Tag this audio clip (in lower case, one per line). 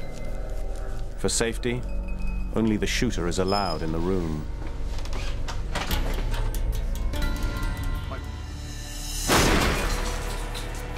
music
speech